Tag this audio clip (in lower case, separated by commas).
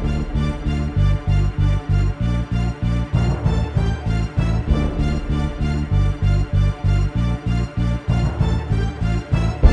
timpani, music